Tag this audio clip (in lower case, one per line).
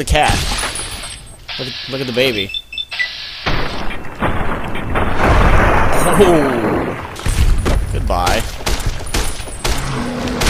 outside, rural or natural
speech